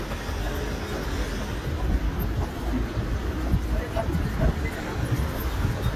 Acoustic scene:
residential area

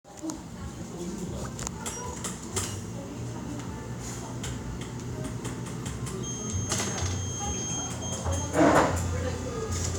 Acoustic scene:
cafe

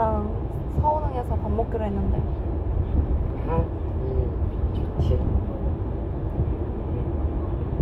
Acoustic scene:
car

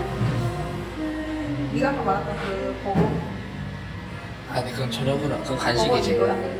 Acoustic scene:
cafe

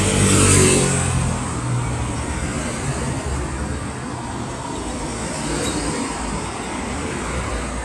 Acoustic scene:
street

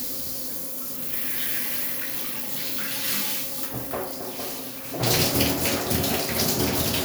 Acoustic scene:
restroom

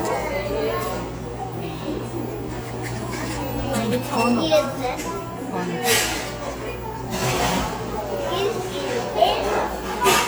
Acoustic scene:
cafe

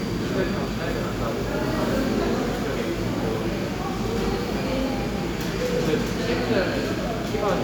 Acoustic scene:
cafe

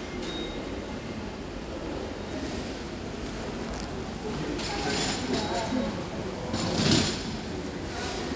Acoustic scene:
crowded indoor space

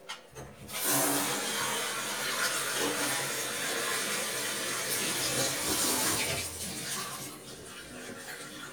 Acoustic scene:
kitchen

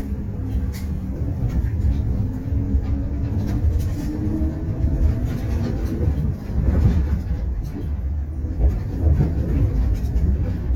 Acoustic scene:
bus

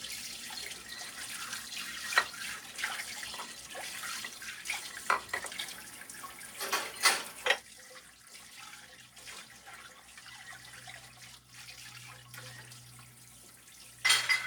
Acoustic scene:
kitchen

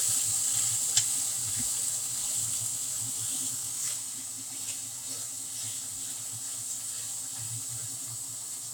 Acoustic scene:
kitchen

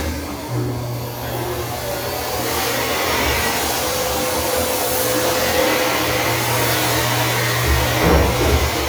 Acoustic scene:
restroom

